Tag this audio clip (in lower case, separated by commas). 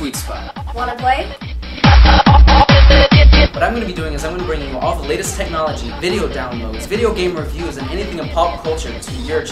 music, speech